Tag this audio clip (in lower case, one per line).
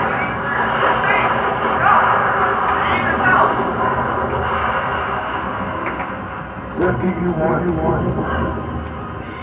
speech